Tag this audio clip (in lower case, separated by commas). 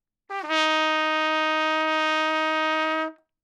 musical instrument, brass instrument, music, trumpet